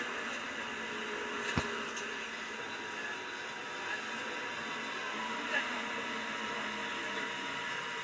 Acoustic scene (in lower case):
bus